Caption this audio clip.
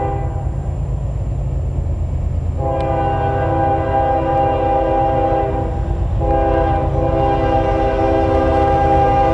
A rail engine and horn sound